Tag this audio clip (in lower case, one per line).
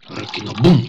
liquid